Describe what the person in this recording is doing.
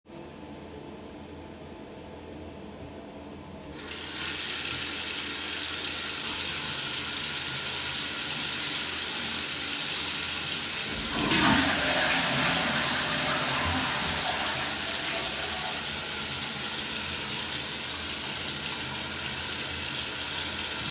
I placed the phone on a surface in the bathroom and started recording. I turned on the water tap and let it run for several seconds.whille the water was running I flushed the toilet. The water continued running for a short time before I stopped the recording.